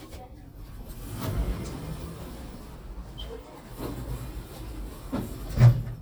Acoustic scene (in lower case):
elevator